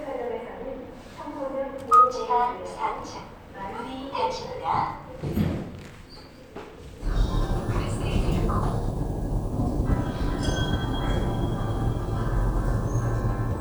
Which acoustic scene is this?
elevator